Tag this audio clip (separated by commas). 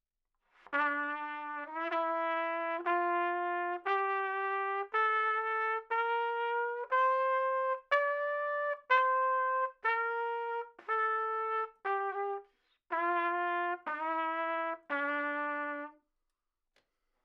Music, Brass instrument, Trumpet, Musical instrument